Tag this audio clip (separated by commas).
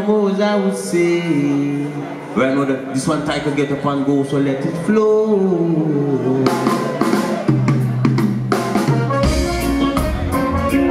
Music